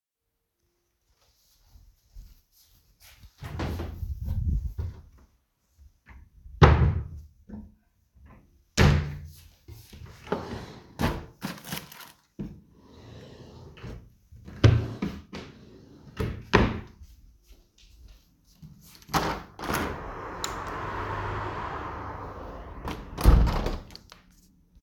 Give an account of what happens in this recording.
I walked inside the bedroom. I opened and closed a wardrobe drawer. Then I walked to the window and opened and closed it.